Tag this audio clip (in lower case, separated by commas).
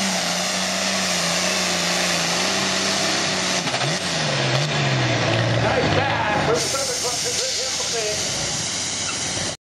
vehicle, outside, rural or natural, speech